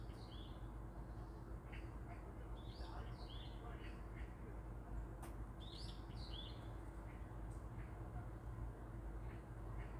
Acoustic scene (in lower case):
park